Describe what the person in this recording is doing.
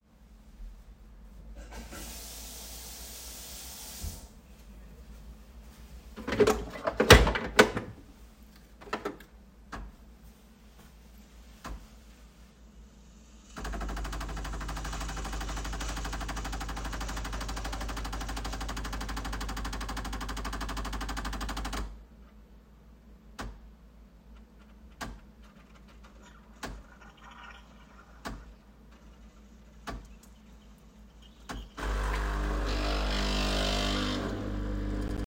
I filled the coffee machine water reservoir by running water from the tap. I then turned on the coffee machine and waited while it began brewing. The sound of the machine running was clearly audible throughout.